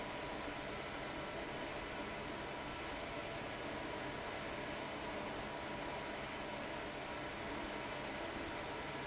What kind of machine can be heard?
fan